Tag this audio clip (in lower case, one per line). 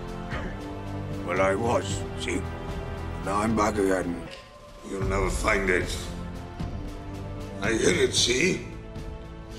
conversation
speech
man speaking
music